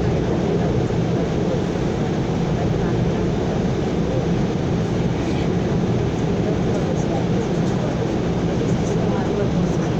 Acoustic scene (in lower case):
subway train